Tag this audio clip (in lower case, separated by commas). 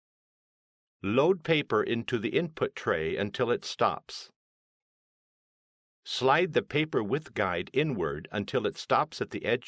speech